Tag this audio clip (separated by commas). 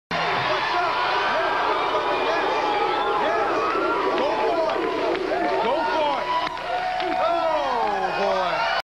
Speech